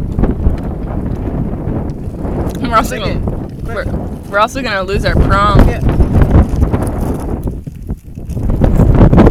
People are speaking outside with wind noise in the background